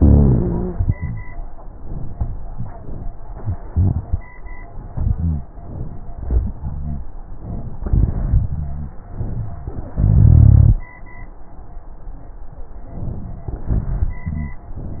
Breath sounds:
Inhalation: 4.88-5.14 s, 6.24-6.60 s, 7.85-8.50 s, 9.16-9.98 s, 12.86-13.59 s
Exhalation: 5.16-5.50 s, 6.62-7.11 s, 8.52-9.09 s, 9.98-10.80 s, 13.72-14.61 s
Rhonchi: 0.00-0.76 s, 5.16-5.50 s, 6.62-7.11 s, 8.52-9.09 s, 9.98-10.80 s, 13.72-14.61 s

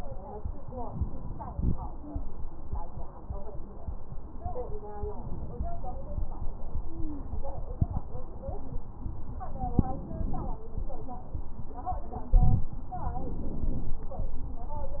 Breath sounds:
Inhalation: 0.81-1.83 s, 9.54-10.62 s, 12.98-14.05 s
Stridor: 6.77-7.45 s

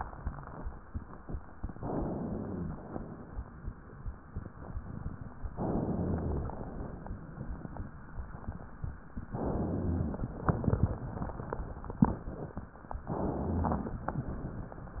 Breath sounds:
Inhalation: 1.78-2.87 s, 5.56-6.64 s, 9.28-10.36 s, 13.07-14.16 s
Rhonchi: 1.94-2.81 s, 5.73-6.60 s, 9.35-10.23 s, 13.19-14.06 s

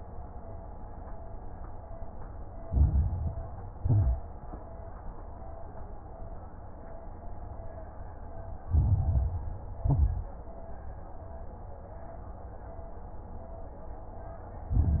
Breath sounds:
Inhalation: 2.64-3.36 s, 8.63-9.69 s, 14.73-15.00 s
Exhalation: 3.74-4.46 s, 9.82-10.35 s
Crackles: 2.64-3.36 s, 3.74-4.46 s, 8.63-9.69 s, 9.82-10.35 s, 14.73-15.00 s

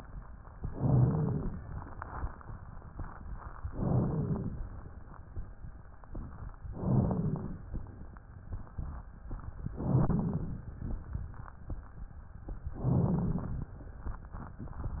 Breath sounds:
Inhalation: 0.68-1.48 s, 3.72-4.52 s, 6.75-7.55 s, 9.83-10.63 s, 12.75-13.70 s
Wheeze: 0.68-1.48 s, 3.72-4.52 s, 6.75-7.55 s, 9.83-10.63 s, 12.75-13.70 s

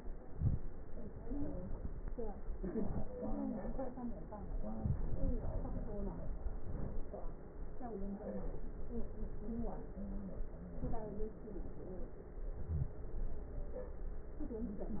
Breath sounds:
Inhalation: 0.24-0.66 s, 6.60-7.04 s
Wheeze: 12.67-12.97 s

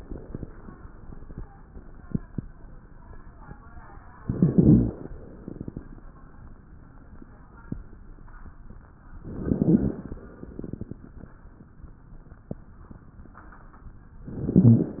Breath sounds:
Inhalation: 4.23-5.11 s, 9.28-10.15 s, 14.25-15.00 s
Exhalation: 5.18-6.05 s, 10.27-11.14 s
Rhonchi: 4.23-5.11 s, 9.28-10.15 s, 14.25-15.00 s

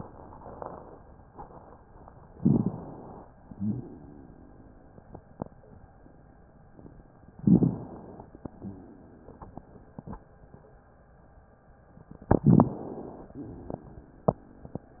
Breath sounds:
Inhalation: 2.35-3.31 s, 7.43-8.39 s, 12.39-13.35 s
Exhalation: 3.39-5.04 s, 8.45-10.18 s, 13.33-15.00 s
Rhonchi: 3.49-3.88 s, 8.57-8.96 s
Crackles: 2.33-2.83 s, 7.41-7.83 s, 12.43-12.68 s

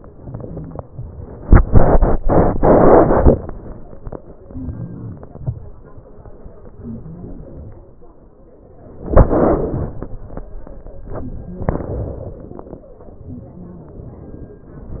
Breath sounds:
Inhalation: 4.47-5.21 s, 6.84-7.74 s
Exhalation: 5.40-5.82 s, 7.86-8.16 s

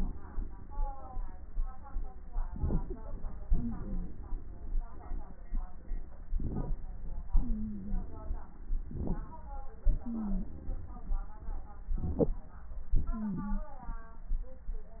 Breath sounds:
Inhalation: 2.47-3.02 s, 6.34-6.79 s, 8.83-9.53 s, 11.96-12.37 s
Exhalation: 3.45-5.41 s, 9.85-11.81 s
Wheeze: 3.55-4.07 s, 7.39-8.05 s, 10.02-10.44 s, 13.10-13.62 s

